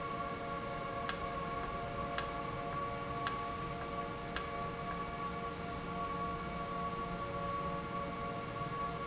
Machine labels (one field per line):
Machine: valve